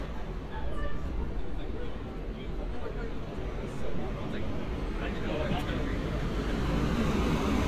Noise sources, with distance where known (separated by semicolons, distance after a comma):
person or small group talking, near